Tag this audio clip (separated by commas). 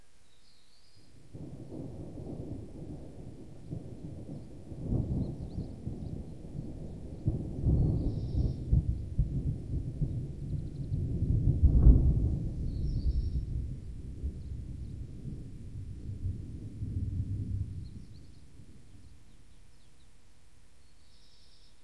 Thunderstorm, Thunder